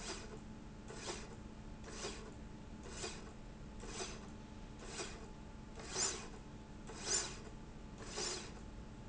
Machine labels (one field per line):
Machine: slide rail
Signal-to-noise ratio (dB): 6 dB